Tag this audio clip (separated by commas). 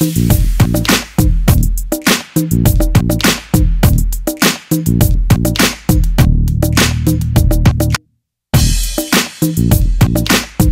Music